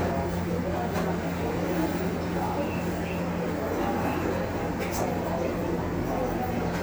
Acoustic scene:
subway station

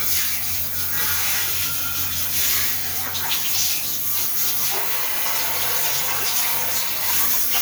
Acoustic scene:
restroom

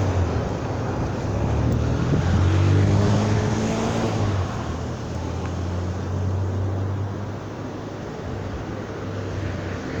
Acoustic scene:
street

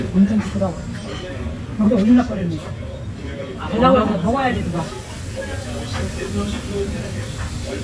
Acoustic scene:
restaurant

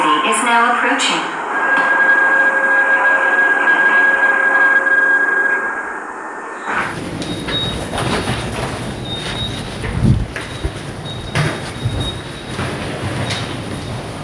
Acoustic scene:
subway station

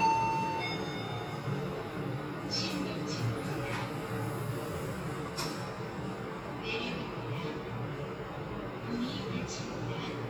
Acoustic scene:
elevator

